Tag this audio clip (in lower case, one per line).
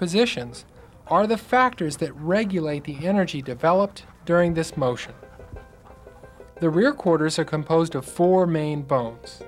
music
speech